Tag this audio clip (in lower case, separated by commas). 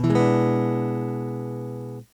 guitar, strum, plucked string instrument, music, musical instrument, acoustic guitar